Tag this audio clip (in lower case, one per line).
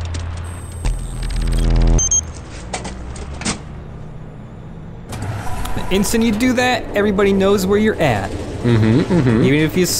speech
outside, urban or man-made